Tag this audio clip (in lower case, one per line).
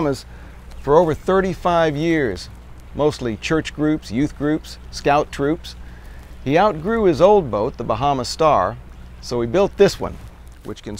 speech